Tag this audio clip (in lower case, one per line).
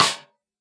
drum
percussion
music
musical instrument
snare drum